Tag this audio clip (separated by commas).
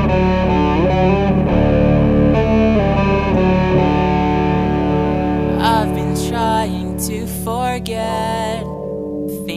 Background music, Music